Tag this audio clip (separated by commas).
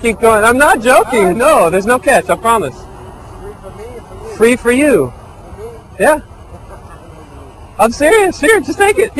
Speech